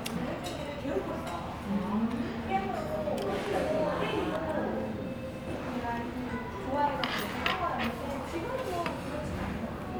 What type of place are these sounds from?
restaurant